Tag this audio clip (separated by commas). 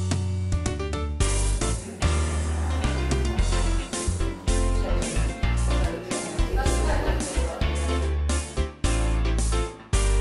Speech, Music